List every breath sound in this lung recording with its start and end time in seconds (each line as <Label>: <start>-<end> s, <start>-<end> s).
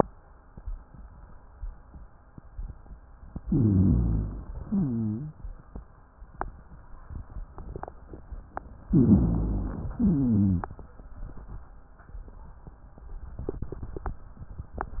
Inhalation: 3.40-4.59 s, 8.88-9.94 s
Exhalation: 4.61-5.35 s, 9.92-10.76 s
Wheeze: 4.61-5.35 s, 9.92-10.76 s
Rhonchi: 3.40-4.59 s, 8.88-9.94 s